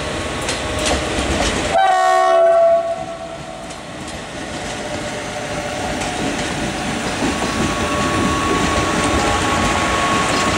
A train honks its horn